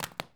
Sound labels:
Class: object falling